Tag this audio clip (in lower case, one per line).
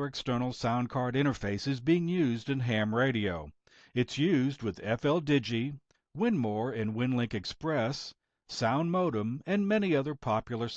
speech